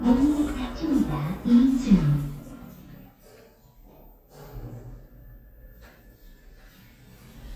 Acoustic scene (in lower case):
elevator